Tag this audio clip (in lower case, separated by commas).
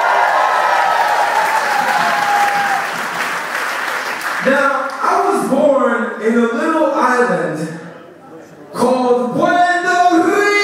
speech